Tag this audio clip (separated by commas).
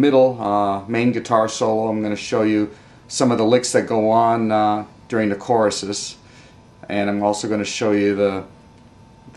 Speech